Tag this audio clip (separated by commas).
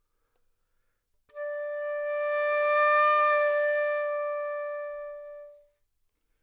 woodwind instrument, Musical instrument, Music